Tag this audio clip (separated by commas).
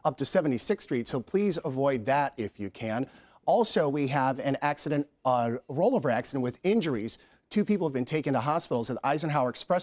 Speech